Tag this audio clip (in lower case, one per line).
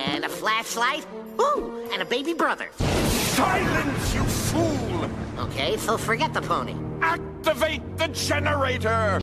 music
speech